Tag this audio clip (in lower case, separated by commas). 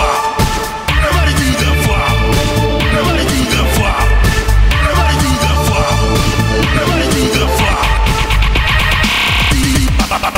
techno, electronic music, music